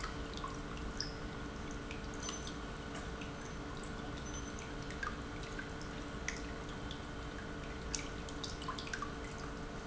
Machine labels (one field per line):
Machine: pump